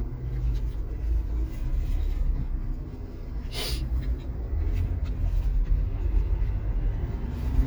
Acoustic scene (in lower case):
car